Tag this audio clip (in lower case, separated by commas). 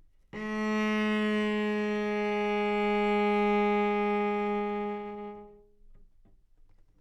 bowed string instrument, music, musical instrument